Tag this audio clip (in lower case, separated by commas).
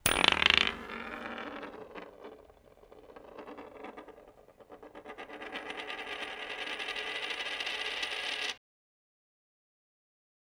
coin (dropping), home sounds